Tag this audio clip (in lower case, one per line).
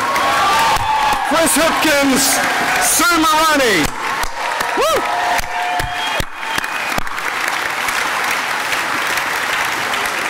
speech
narration
male speech